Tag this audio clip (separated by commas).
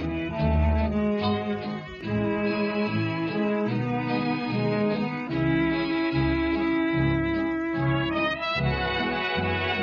Music, String section